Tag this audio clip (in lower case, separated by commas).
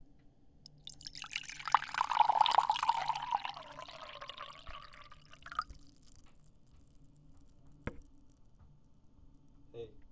liquid